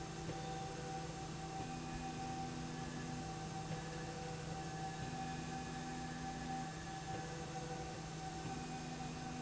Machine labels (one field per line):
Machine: slide rail